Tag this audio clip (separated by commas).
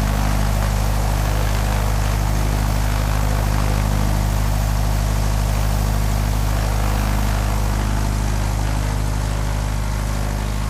Vehicle, Heavy engine (low frequency)